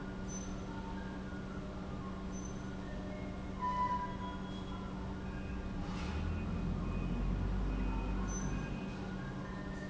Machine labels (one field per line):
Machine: pump